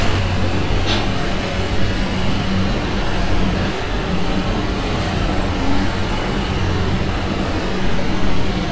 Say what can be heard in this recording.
engine of unclear size, unidentified impact machinery